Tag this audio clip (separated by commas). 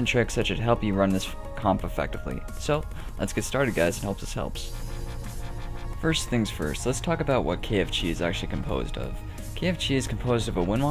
Speech, Music